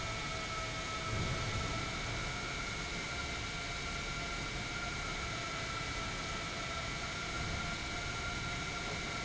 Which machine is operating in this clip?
pump